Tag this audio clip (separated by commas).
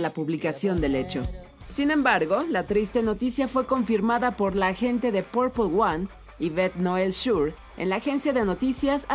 Speech, Music